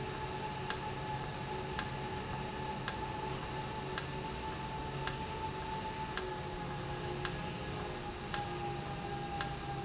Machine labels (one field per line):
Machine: valve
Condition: normal